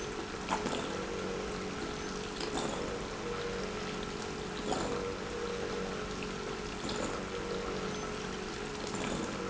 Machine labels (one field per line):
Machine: pump